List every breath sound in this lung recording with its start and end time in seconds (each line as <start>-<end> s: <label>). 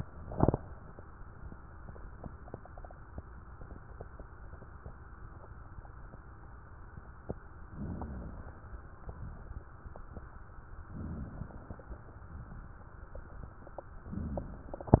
7.64-8.89 s: inhalation
10.83-12.20 s: inhalation